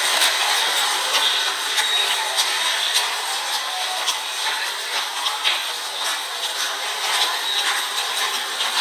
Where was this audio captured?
in a subway station